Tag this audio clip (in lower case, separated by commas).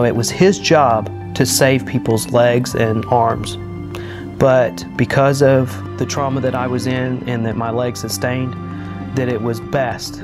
music, speech